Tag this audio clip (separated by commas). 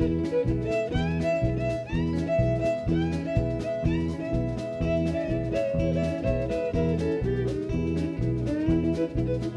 fiddle, Music, Musical instrument